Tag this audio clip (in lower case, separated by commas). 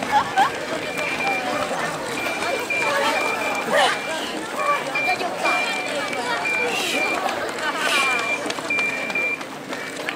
run, speech, outside, urban or man-made